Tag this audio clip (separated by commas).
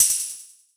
Music, Percussion, Tambourine, Musical instrument